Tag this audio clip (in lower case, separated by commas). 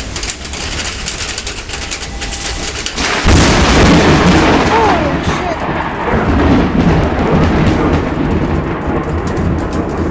thunderstorm, speech